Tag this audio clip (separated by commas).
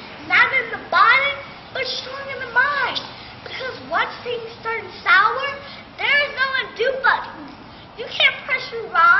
Female speech, Speech